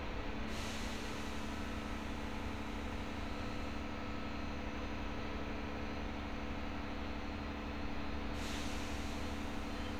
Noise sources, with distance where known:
large-sounding engine

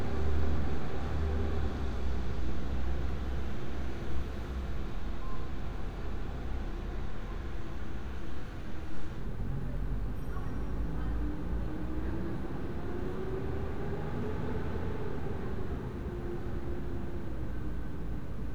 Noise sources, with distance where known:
large-sounding engine

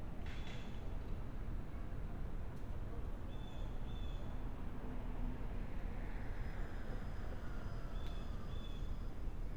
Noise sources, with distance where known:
background noise

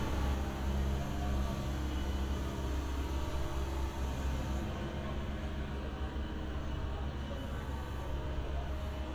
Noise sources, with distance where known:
siren, far

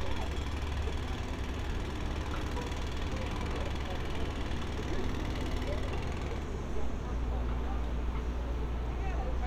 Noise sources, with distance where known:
jackhammer, far

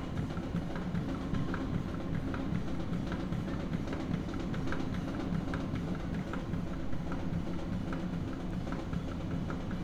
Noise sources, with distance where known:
music from an unclear source, near

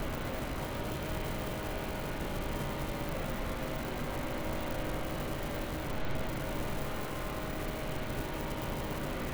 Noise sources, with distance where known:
unidentified powered saw

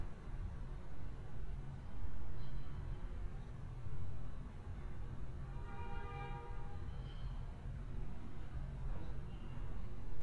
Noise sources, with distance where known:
car horn, far

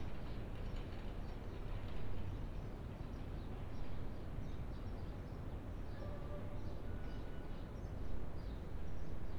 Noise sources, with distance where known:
background noise

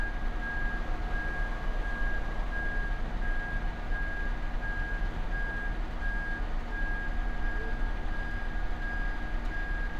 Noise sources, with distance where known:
reverse beeper

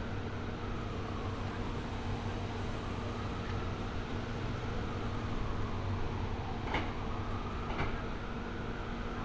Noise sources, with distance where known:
unidentified impact machinery, near
siren

